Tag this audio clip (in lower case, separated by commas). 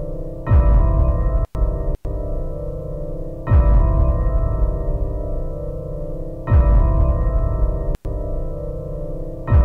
background music, music